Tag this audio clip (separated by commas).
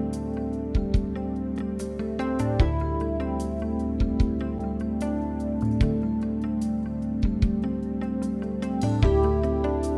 Music